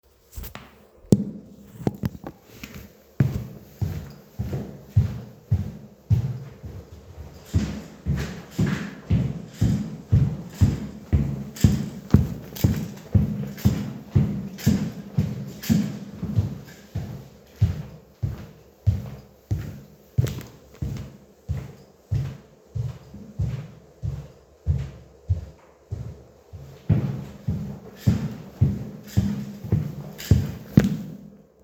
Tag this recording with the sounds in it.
footsteps